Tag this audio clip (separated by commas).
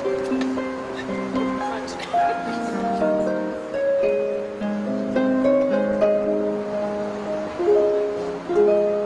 playing harp